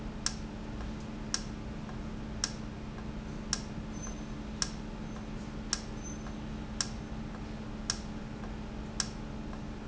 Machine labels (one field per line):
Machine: valve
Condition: normal